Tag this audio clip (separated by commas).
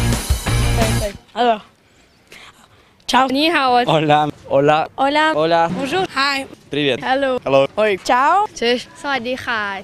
Music, Speech, Electronic music